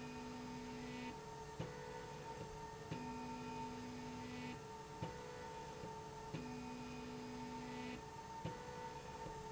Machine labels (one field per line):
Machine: slide rail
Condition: normal